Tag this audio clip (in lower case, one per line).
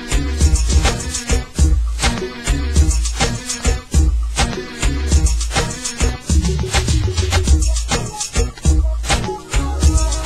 music